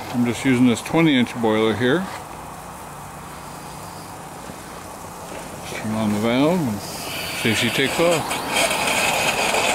An adult male is speaking, and a motor vehicle engine is running, and rhythmic metal grinding begins